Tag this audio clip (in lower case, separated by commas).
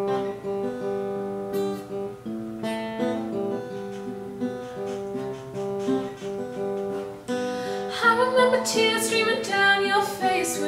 music